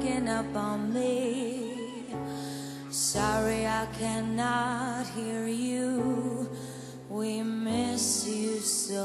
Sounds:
music

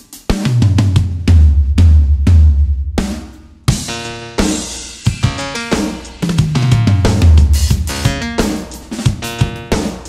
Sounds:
bass drum
drum kit
drum
musical instrument
music

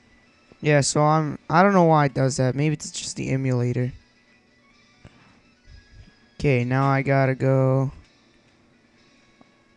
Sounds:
speech

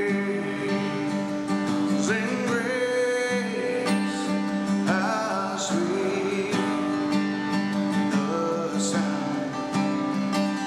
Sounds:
male singing
music

